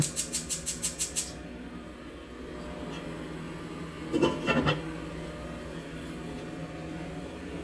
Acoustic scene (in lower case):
kitchen